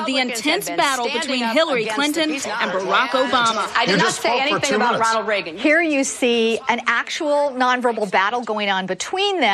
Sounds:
speech

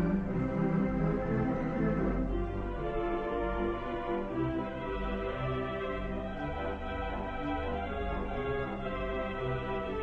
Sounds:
keyboard (musical), music, classical music, musical instrument

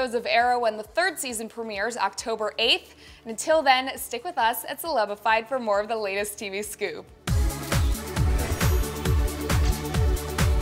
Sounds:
music, speech

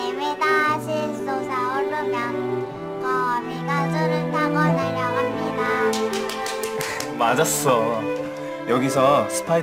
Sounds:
music, child singing, speech

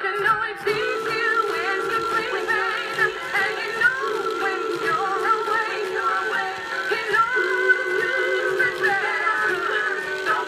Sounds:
music, speech

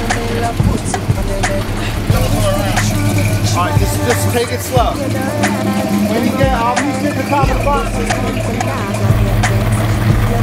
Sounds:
music, speech

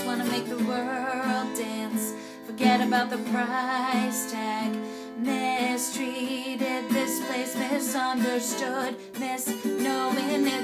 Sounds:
music

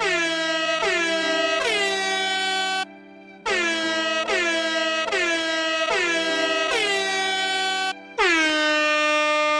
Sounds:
truck horn

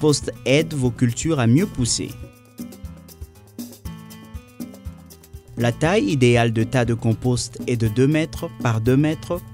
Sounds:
music, speech

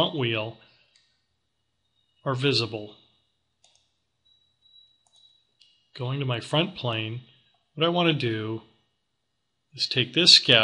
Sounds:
speech

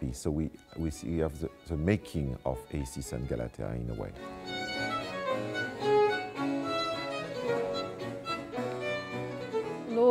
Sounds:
violin, bowed string instrument

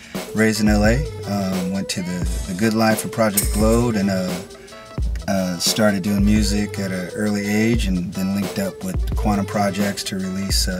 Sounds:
music, speech

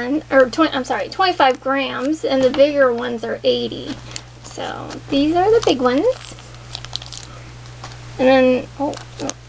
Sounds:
speech

